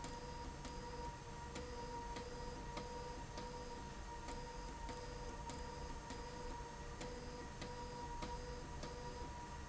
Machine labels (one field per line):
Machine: slide rail